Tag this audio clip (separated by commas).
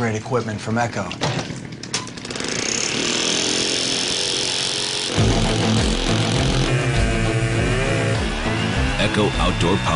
Speech, Music